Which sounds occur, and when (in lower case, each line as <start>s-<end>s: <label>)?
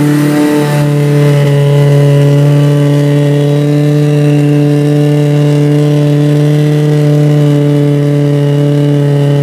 0.0s-9.4s: medium engine (mid frequency)